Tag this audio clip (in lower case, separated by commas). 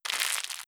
crackle